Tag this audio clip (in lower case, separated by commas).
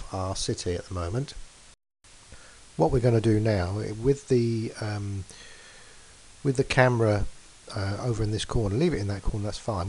speech